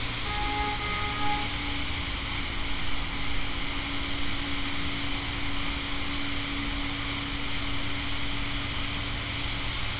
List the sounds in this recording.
car horn